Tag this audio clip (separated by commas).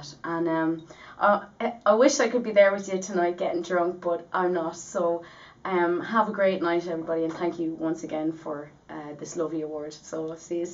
monologue, Speech, Female speech